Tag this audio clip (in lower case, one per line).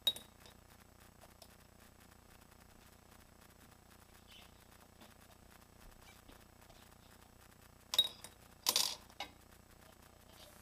inside a small room